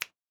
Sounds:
Hands, Finger snapping

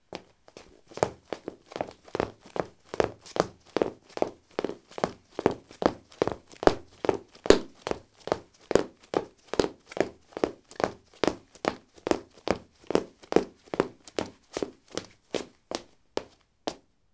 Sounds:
Run

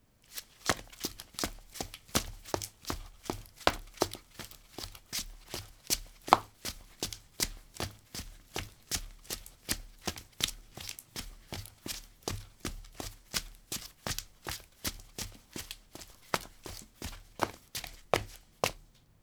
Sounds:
Run

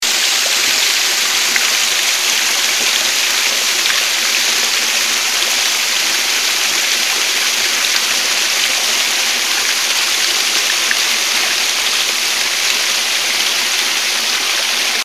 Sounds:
Water

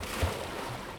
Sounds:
Water, Waves, Ocean

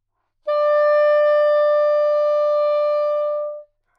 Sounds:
Music, Musical instrument, woodwind instrument

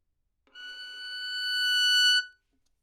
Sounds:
Musical instrument, Bowed string instrument, Music

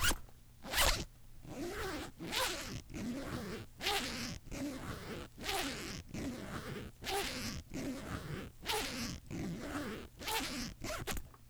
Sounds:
Domestic sounds, Zipper (clothing)

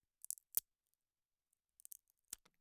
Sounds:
Crack

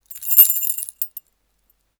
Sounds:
Domestic sounds, Keys jangling, Rattle

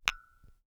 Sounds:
Glass, Tap

